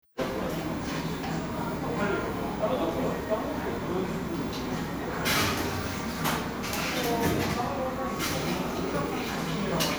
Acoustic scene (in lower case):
crowded indoor space